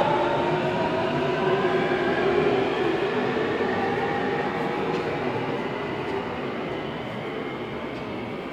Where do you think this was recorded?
in a subway station